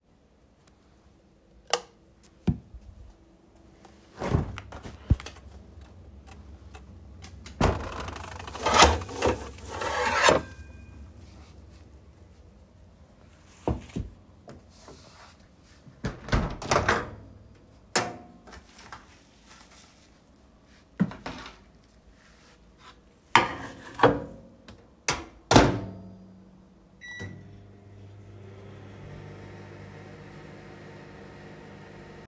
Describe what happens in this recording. I opened the light in the kitchen and opened the fridge where took out a plate with food. Then I closed the fridge and opened the microwave where I placed the plate and closed the microwave and started it.